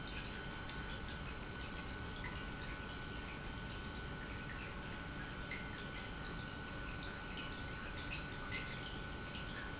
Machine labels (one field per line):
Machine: pump